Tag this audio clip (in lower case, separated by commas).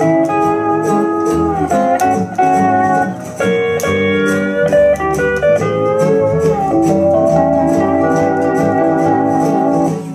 guitar, music, musical instrument